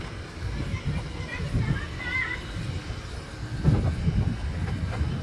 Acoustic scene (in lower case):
residential area